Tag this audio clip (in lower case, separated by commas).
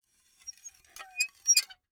squeak, dishes, pots and pans, home sounds